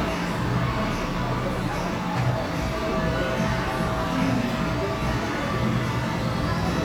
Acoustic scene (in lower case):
cafe